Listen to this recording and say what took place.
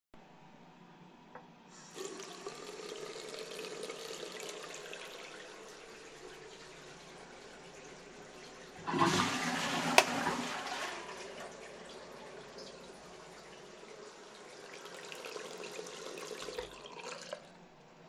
I turned on the water in the bathroom sink while I turned to flush the toilet and to switch on the light behind the mirror. Then I turned off the water in the sink.